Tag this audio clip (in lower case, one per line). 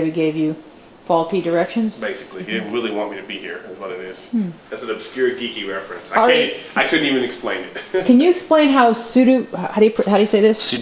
speech